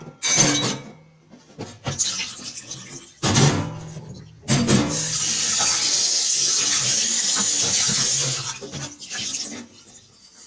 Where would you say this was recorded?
in a kitchen